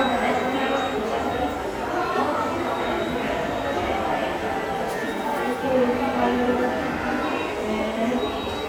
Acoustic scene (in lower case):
subway station